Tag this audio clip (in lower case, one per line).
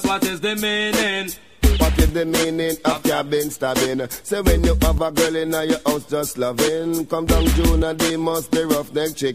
music